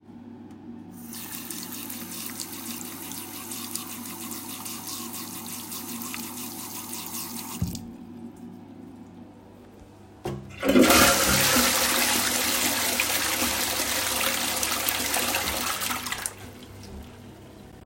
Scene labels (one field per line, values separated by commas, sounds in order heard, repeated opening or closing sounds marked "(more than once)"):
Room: bathroom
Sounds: running water, toilet flushing